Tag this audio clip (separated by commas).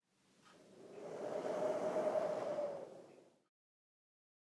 Wind